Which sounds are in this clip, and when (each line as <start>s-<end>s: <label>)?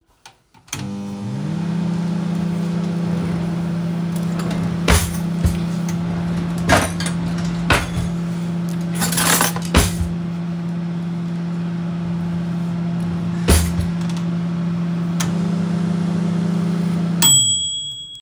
0.7s-18.2s: microwave
4.9s-5.6s: wardrobe or drawer
6.7s-10.1s: wardrobe or drawer
13.5s-14.2s: wardrobe or drawer